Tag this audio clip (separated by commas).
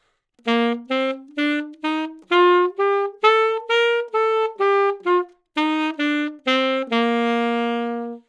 woodwind instrument, Music, Musical instrument